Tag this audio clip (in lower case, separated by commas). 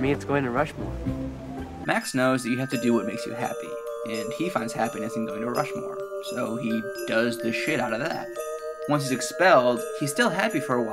inside a large room or hall, speech, music